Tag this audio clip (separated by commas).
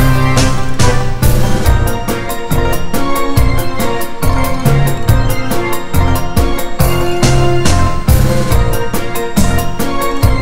Music